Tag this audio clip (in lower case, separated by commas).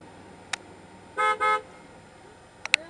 car, alarm, vehicle horn, vehicle, motor vehicle (road)